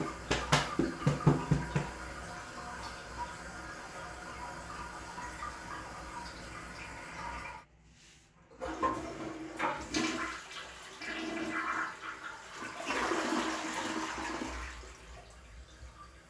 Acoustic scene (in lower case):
restroom